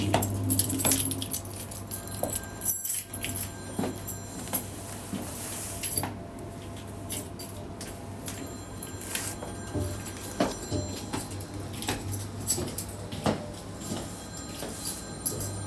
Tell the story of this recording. I walked down my kitchen with keychain in my hands while the microwave was running and the phone was ringing.